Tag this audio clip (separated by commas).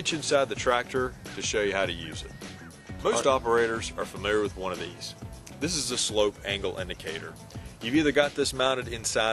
Speech, Music